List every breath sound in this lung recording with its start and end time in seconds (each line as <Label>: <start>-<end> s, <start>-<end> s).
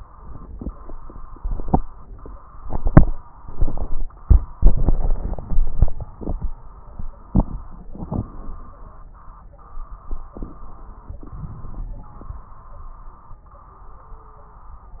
Inhalation: 11.28-12.54 s
Crackles: 11.28-12.54 s